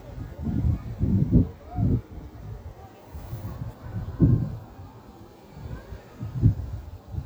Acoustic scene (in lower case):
park